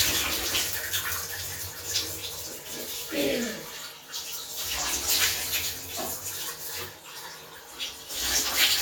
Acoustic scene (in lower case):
restroom